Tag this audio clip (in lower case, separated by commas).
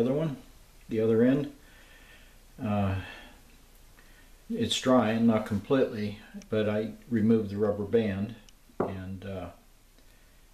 wood